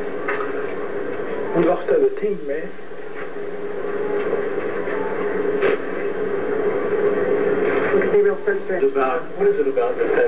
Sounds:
Speech

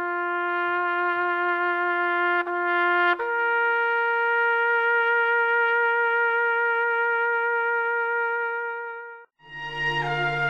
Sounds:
Trombone

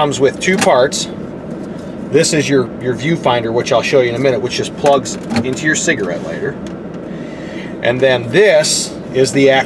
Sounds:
Speech

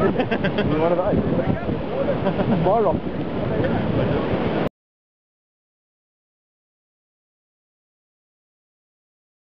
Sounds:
Boat, Speech

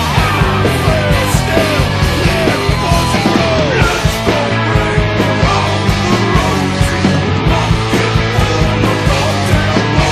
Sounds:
Music

